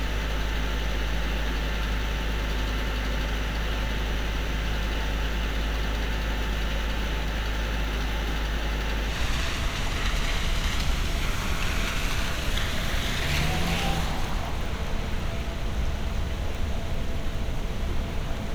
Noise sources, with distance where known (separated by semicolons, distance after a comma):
medium-sounding engine